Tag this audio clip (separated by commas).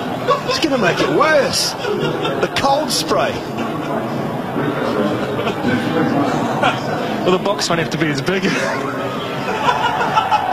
Speech